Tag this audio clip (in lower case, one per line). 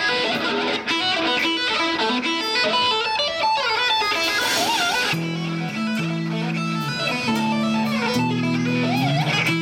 music